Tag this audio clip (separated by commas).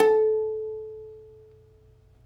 Music, Plucked string instrument, Musical instrument